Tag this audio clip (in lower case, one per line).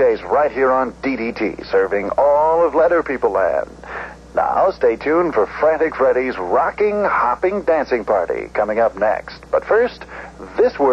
speech